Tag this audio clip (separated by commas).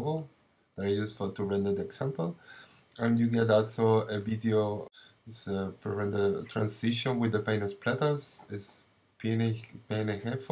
Speech